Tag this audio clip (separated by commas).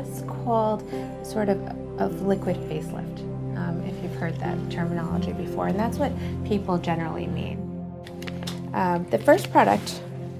Speech, Music